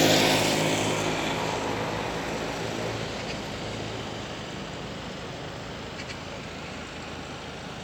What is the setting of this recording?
street